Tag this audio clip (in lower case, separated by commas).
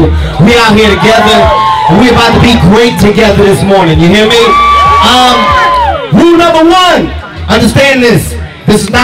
speech, outside, urban or man-made, crowd